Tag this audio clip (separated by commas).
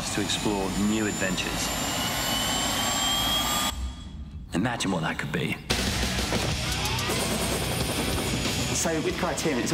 Jet engine